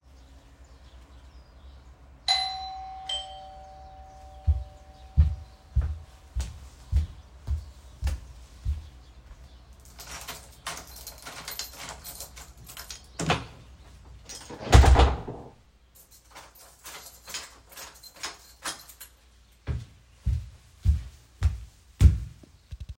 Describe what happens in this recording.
The bell rang, I entered the door used the keychain to open and close the door and went away from the door.